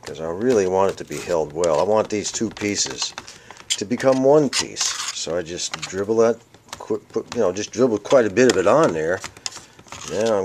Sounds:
Speech

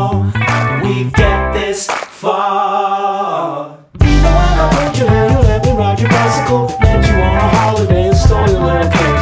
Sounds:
Music

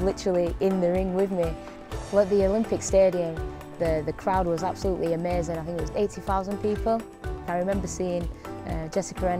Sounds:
Music, Speech

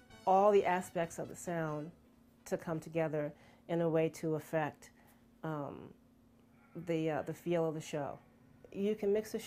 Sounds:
Speech

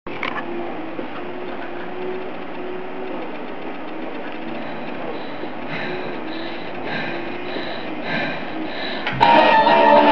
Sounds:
Music, inside a small room

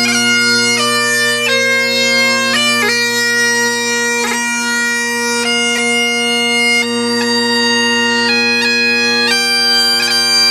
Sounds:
Music, playing bagpipes, Bagpipes

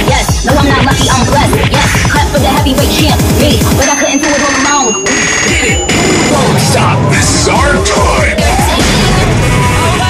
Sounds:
Music, Pop music

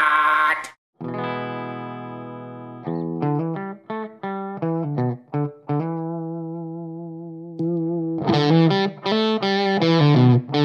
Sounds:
Music, Distortion, Bass guitar

